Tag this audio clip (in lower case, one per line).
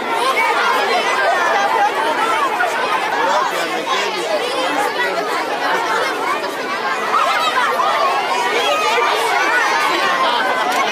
speech